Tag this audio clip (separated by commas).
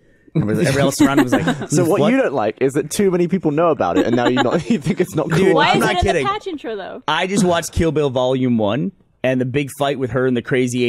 Speech